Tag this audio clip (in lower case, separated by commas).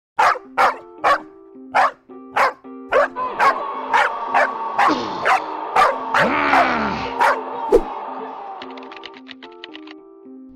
bark, animal, dog, music